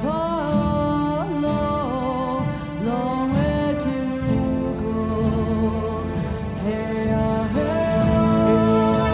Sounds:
drum, musical instrument, music

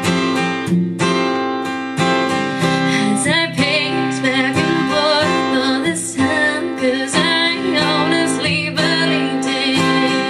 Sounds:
strum, guitar, musical instrument, plucked string instrument, music

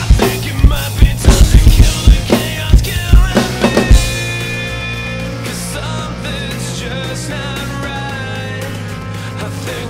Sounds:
drum kit, music, playing drum kit, musical instrument, drum

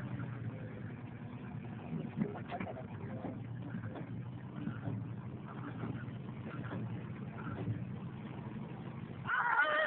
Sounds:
speech

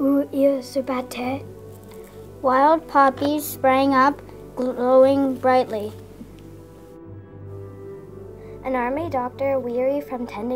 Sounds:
music, speech

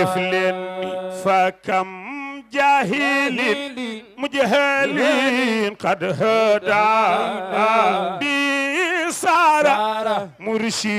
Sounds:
mantra, music

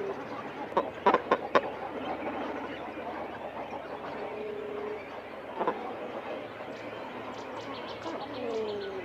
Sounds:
bird call, bird

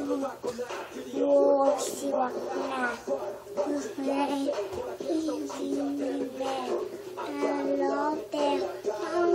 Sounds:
music

